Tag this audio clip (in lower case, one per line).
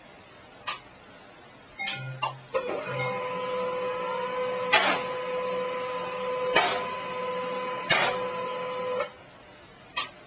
printer